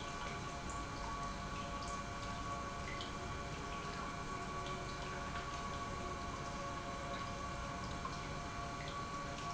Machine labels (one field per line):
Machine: pump